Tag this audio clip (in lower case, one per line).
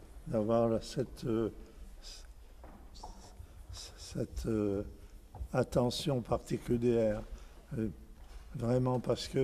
speech